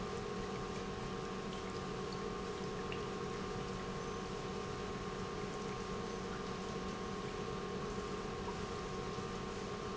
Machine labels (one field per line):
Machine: pump